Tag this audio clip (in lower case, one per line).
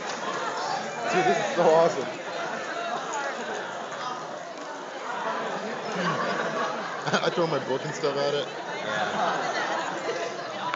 speech